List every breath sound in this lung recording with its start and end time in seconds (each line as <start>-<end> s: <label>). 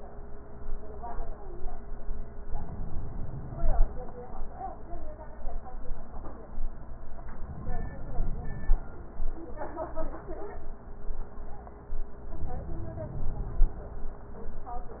2.48-3.98 s: inhalation
7.38-8.92 s: inhalation
12.32-13.86 s: inhalation